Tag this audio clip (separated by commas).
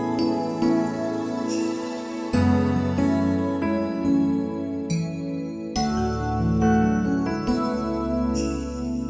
cell phone buzzing